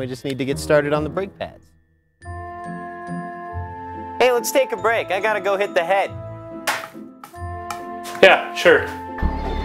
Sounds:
Speech, Music

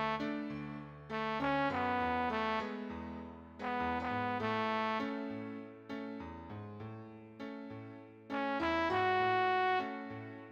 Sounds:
Traditional music, Theme music, Music, Happy music, New-age music, Soundtrack music, Tender music, Background music

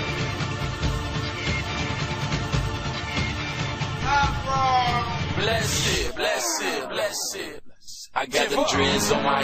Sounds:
Music

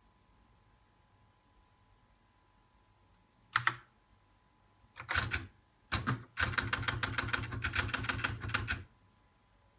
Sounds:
Typewriter

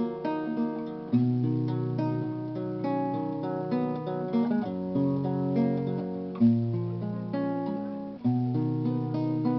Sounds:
Acoustic guitar, Guitar, Music, Musical instrument, Plucked string instrument

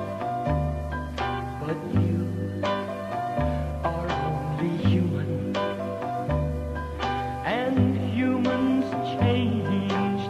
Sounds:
Music

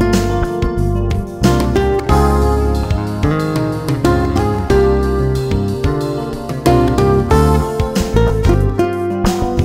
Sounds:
Music

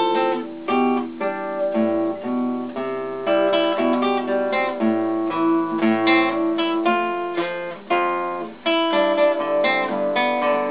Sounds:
Music, Guitar, Acoustic guitar, Plucked string instrument, Musical instrument

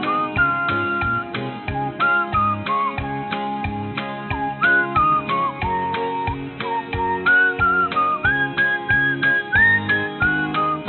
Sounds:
Whistling, Music

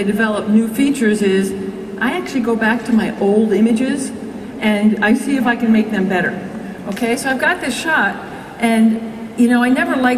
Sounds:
Speech

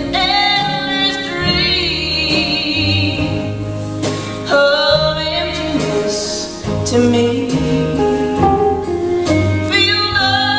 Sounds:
Country, Wedding music, Musical instrument, Singing, Guitar, Music

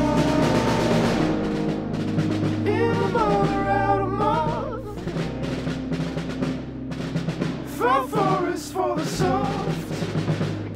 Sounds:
Music, Timpani

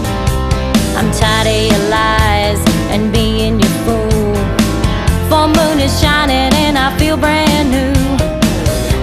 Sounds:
Music

